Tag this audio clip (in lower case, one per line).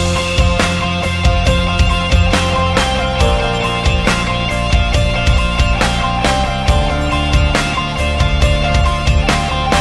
music